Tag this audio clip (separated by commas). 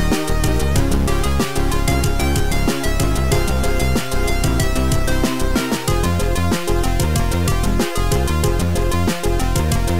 Music